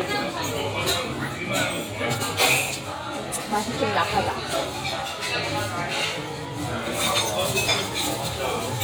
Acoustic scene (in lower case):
restaurant